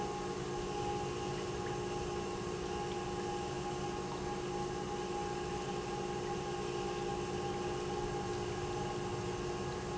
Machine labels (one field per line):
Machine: pump